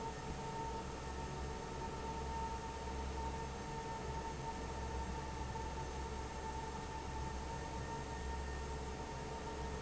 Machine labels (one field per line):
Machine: fan